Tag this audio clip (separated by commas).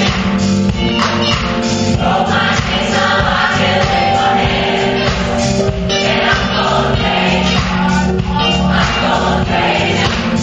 Music